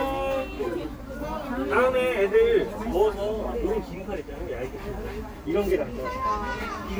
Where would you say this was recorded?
in a park